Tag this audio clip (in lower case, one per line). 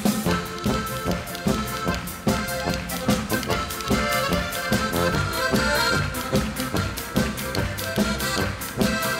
music